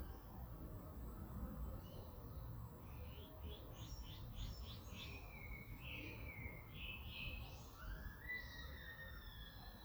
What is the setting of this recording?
park